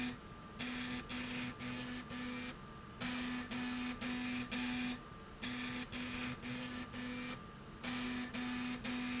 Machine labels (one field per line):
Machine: slide rail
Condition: abnormal